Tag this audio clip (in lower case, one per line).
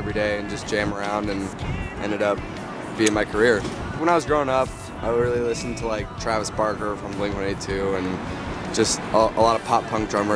music
speech